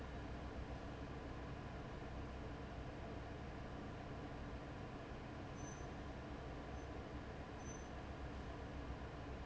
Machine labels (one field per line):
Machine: fan